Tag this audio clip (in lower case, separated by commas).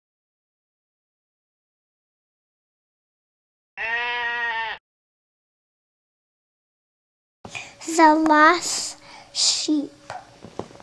speech, bleat